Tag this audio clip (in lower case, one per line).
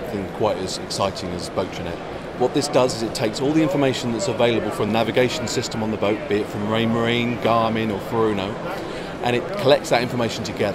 speech